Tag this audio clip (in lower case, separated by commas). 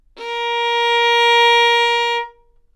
bowed string instrument, music, musical instrument